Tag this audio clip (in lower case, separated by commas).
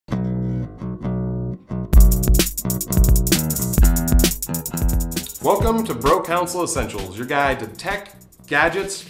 music, speech